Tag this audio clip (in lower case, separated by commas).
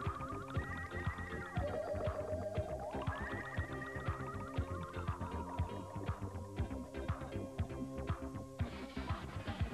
progressive rock, music